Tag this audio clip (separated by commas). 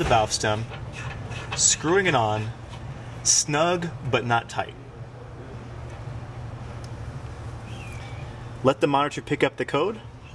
Speech